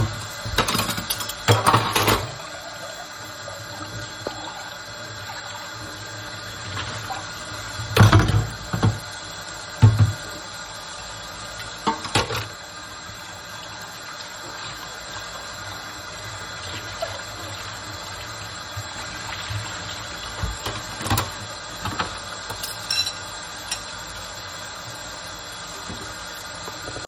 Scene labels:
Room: kitchen; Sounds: running water

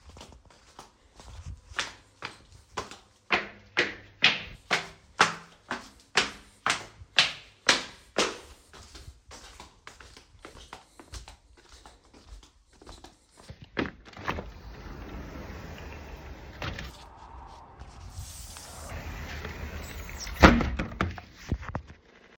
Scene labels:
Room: bedroom; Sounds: footsteps, window (more than once)

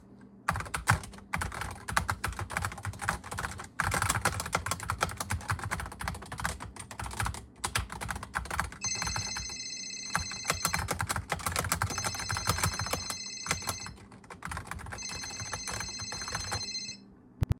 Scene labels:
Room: living room; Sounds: keyboard typing, phone ringing

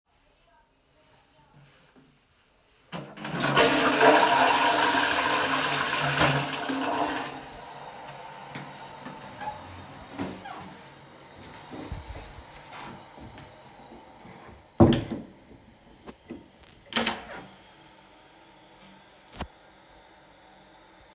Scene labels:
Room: lavatory; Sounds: toilet flushing, door (more than once)

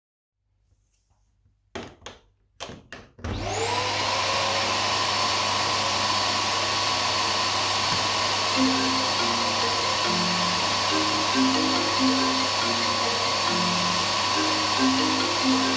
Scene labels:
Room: living room; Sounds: vacuum cleaner, phone ringing

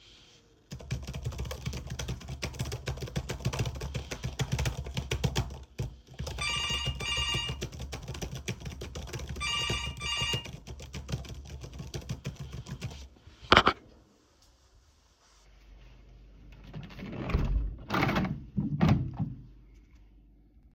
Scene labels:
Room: office; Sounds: keyboard typing, phone ringing, window

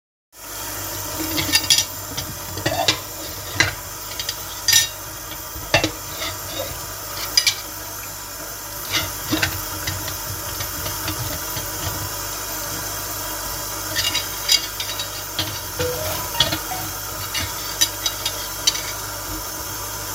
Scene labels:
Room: kitchen; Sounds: running water, cutlery and dishes, phone ringing

